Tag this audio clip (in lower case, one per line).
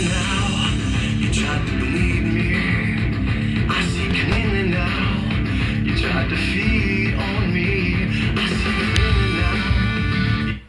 music